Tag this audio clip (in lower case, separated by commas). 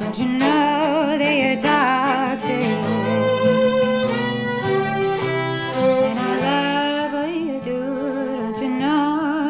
musical instrument, inside a large room or hall, music